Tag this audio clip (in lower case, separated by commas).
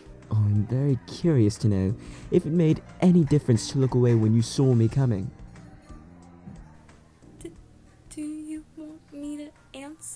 speech, music